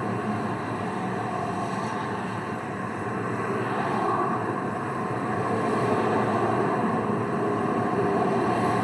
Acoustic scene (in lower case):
street